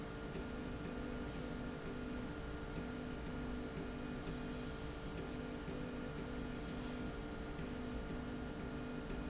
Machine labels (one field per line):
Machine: slide rail